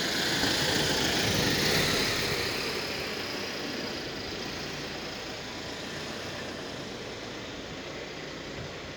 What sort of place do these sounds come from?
residential area